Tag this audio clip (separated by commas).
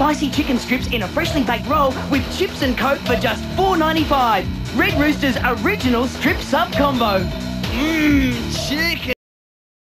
Music, Speech